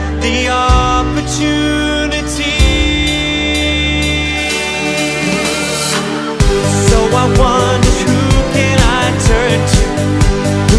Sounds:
music

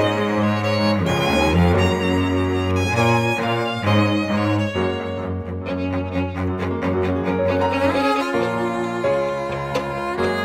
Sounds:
fiddle, bowed string instrument, orchestra, playing cello, piano, cello, music, musical instrument

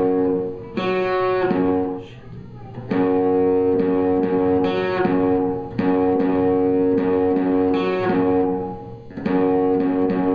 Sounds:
musical instrument, speech, music, plucked string instrument, guitar, electric guitar, strum

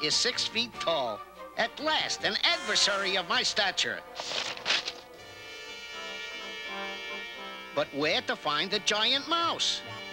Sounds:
speech, music

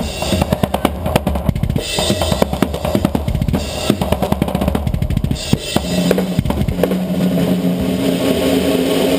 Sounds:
musical instrument, music, drum kit, drum

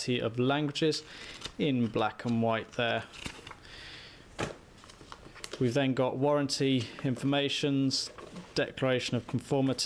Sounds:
speech

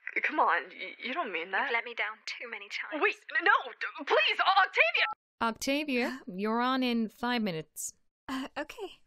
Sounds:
speech

